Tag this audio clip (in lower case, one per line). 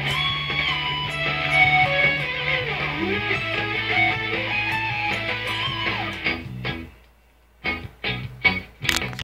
musical instrument
music
plucked string instrument
electric guitar
guitar